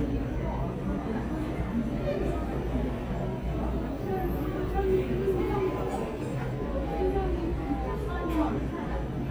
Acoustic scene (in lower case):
crowded indoor space